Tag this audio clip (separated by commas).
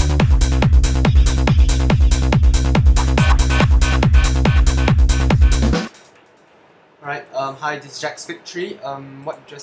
Music, Electronic music, Trance music